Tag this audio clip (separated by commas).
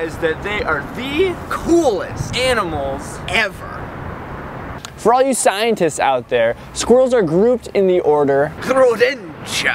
Speech